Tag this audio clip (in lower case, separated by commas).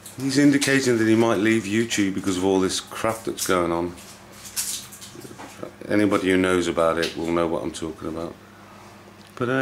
speech